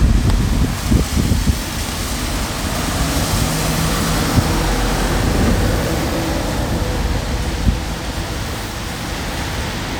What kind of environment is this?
street